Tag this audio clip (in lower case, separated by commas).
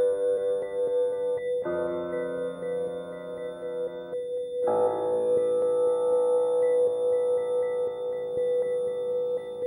music, ambient music